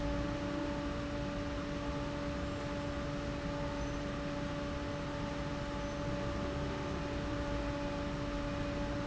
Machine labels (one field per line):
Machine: fan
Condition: abnormal